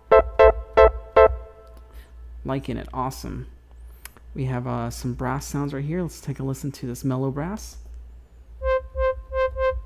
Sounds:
Synthesizer, Music, Speech

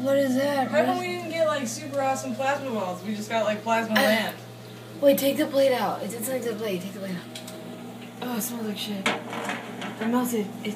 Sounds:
Conversation, Speech

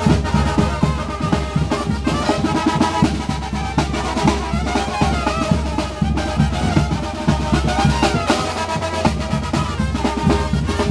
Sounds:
Music

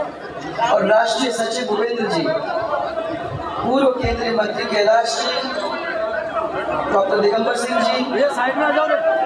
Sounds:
Speech, monologue, woman speaking

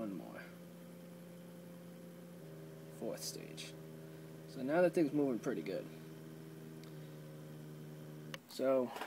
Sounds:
Speech, inside a small room

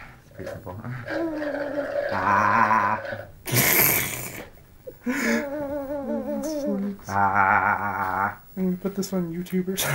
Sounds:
Speech, man speaking

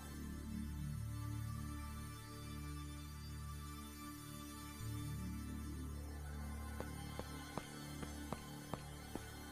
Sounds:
Music

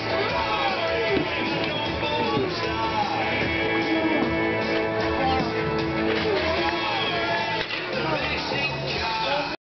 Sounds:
Speech, Music

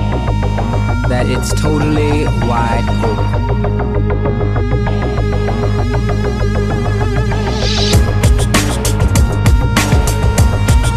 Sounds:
Drum and bass

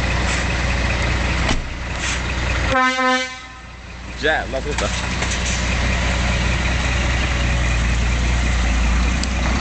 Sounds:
Speech

